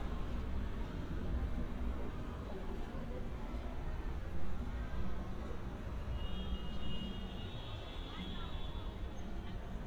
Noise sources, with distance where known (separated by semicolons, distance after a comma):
background noise